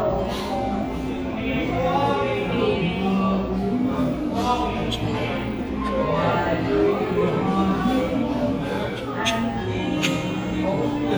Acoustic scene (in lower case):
cafe